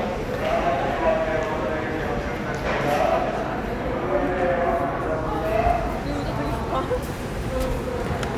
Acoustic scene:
subway station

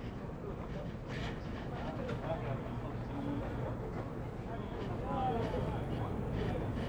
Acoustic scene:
crowded indoor space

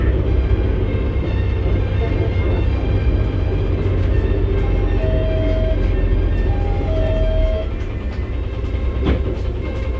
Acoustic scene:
bus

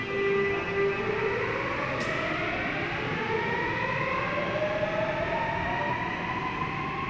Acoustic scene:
subway station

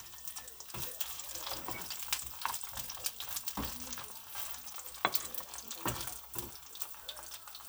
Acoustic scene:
kitchen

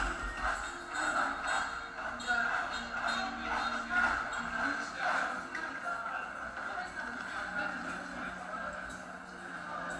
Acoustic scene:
cafe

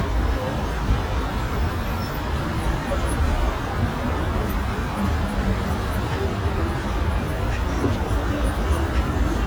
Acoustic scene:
residential area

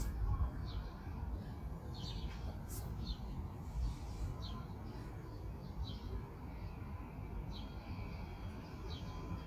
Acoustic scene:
park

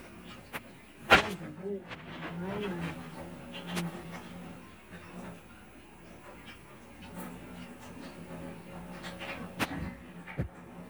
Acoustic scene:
restaurant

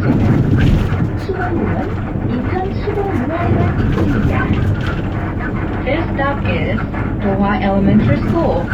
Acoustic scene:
bus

